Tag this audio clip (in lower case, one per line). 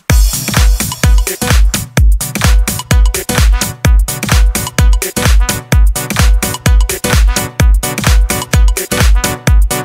music